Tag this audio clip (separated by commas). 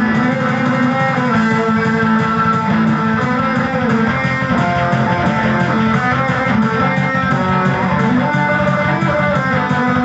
Musical instrument, Music, Guitar, Plucked string instrument